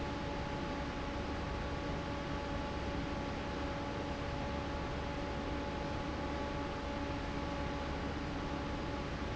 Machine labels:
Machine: fan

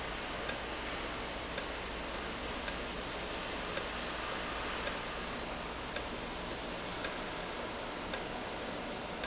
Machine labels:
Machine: valve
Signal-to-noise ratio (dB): -6 dB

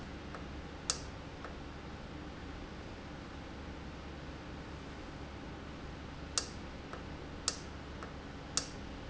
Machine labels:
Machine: valve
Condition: normal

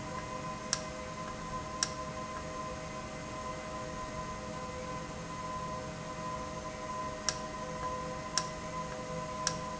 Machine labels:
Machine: valve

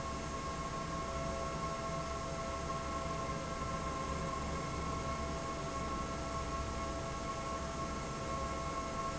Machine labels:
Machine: fan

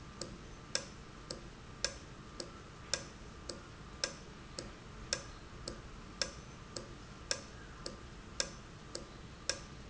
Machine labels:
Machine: valve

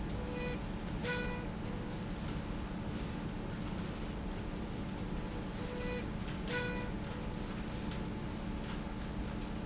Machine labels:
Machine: slide rail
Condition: normal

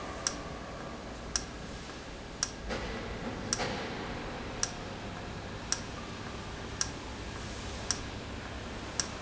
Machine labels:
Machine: valve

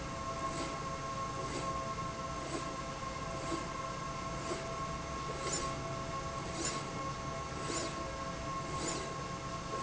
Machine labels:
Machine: slide rail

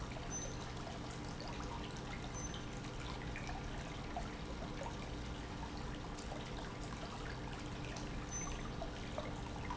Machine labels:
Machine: pump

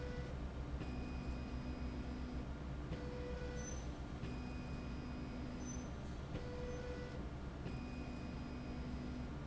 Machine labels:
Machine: slide rail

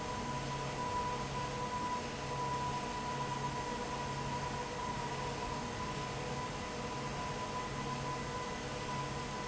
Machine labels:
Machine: fan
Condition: abnormal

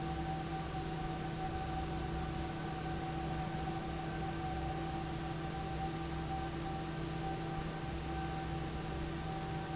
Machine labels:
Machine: fan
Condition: normal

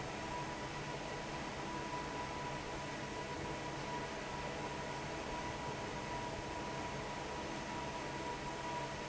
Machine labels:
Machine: fan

